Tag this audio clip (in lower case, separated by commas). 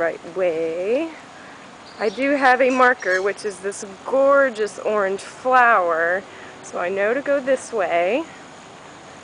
speech